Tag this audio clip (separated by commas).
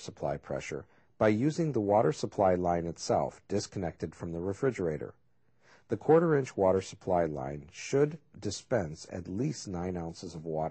Speech